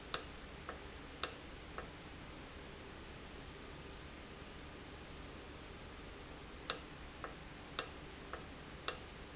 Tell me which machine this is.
valve